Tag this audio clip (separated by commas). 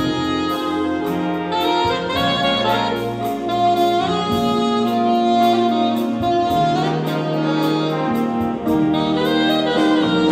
playing saxophone